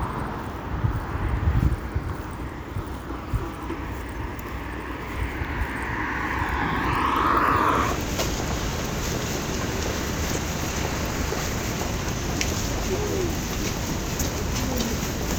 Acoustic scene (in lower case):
street